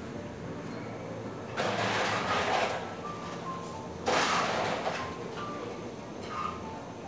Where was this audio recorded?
in a cafe